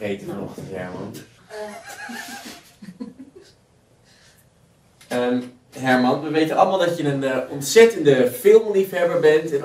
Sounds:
inside a large room or hall, Speech

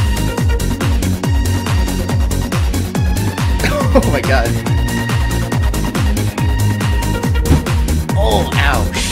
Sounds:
Trance music

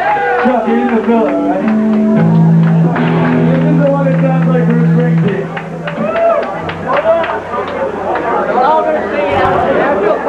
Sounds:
Music, Speech

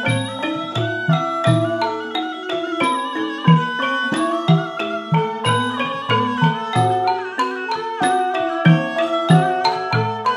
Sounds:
Classical music, Music

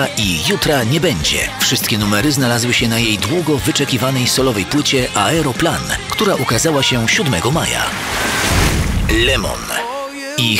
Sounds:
Speech, Music

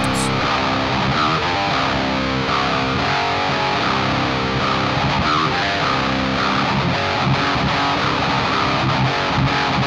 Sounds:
Guitar, Plucked string instrument, Music, Musical instrument, Strum, Electric guitar

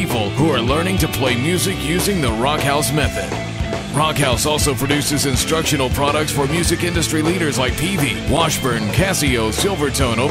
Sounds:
Rock and roll, Speech, Music

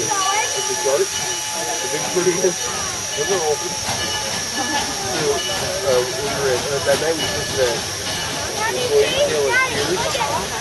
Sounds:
outside, rural or natural, Train, Vehicle, Speech, Rail transport

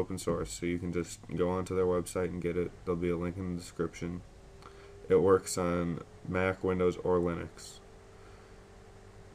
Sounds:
Speech

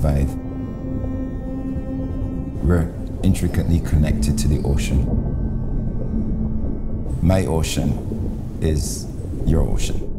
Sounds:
Music, Speech

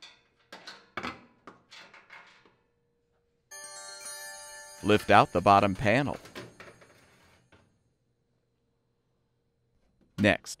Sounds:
Music, Speech

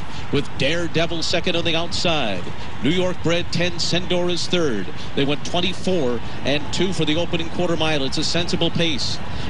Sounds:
Speech

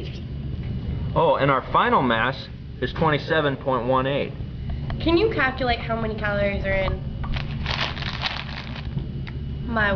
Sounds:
Speech, inside a large room or hall, Crackle

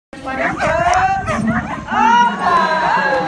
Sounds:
Bow-wow, pets, Speech, Dog, Animal

